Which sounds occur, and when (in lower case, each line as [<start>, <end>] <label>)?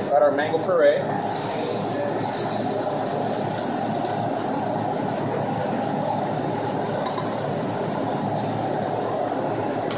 [0.00, 0.94] male speech
[0.00, 9.95] mechanisms
[1.29, 1.41] generic impact sounds
[1.42, 1.73] human voice
[1.92, 2.21] human voice
[2.28, 2.60] generic impact sounds
[3.18, 3.29] generic impact sounds
[3.52, 3.65] generic impact sounds
[3.98, 4.05] generic impact sounds
[4.22, 4.33] generic impact sounds
[4.50, 4.57] generic impact sounds
[5.27, 5.37] generic impact sounds
[6.55, 6.88] generic impact sounds
[6.99, 7.17] silverware
[7.32, 7.40] silverware
[8.31, 8.59] surface contact
[8.92, 9.02] generic impact sounds
[9.87, 9.95] generic impact sounds